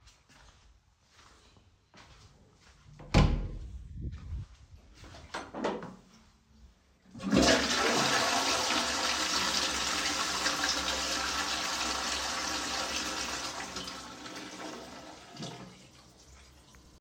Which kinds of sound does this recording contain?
footsteps, door, toilet flushing